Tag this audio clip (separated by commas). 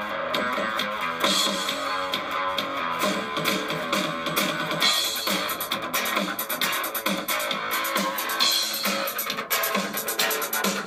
Guitar, Music, Strum, Musical instrument, Plucked string instrument